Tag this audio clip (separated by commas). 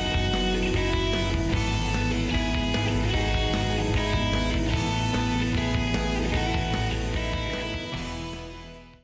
Music